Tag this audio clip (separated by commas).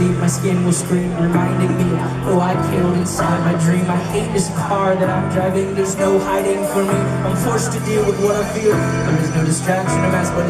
Speech, Music